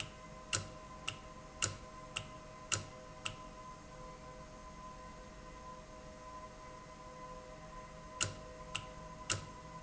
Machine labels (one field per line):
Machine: valve